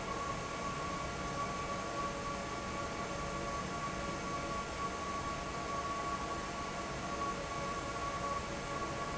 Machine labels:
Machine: fan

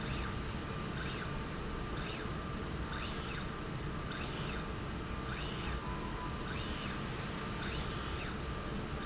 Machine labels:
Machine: slide rail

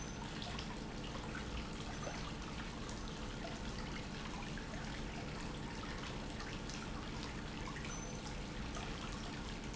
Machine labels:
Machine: pump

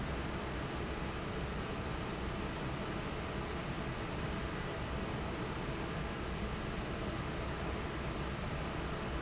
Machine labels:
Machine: fan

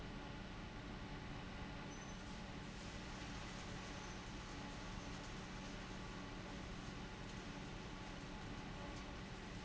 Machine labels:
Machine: fan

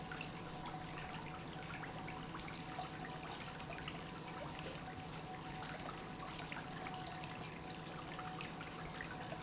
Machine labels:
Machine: pump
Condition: normal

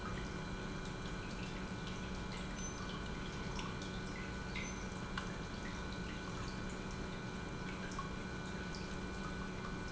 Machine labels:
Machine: pump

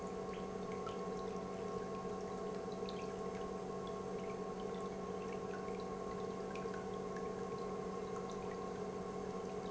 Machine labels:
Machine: pump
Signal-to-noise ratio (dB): 6 dB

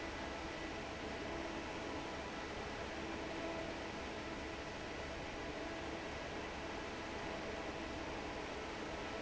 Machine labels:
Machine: fan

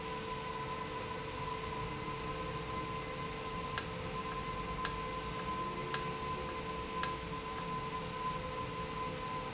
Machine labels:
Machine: valve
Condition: normal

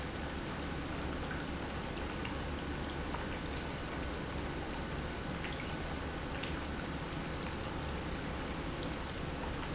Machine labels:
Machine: pump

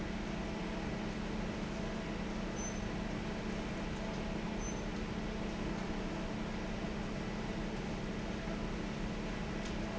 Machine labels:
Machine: fan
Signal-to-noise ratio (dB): -6 dB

